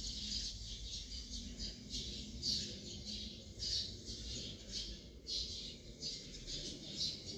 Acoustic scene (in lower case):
park